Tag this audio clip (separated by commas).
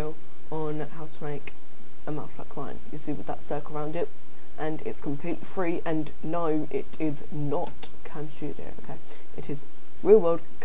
Speech